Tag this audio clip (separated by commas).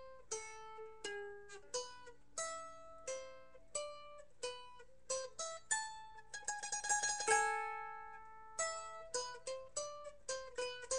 Musical instrument, Plucked string instrument, Mandolin, inside a small room